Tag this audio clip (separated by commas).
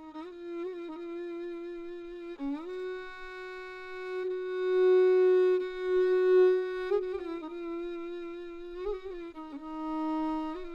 playing violin, Musical instrument, Music, fiddle